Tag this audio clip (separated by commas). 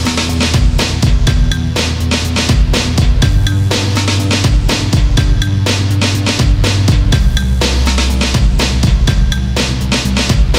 Music